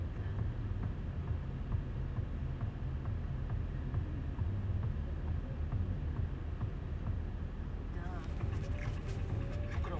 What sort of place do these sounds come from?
car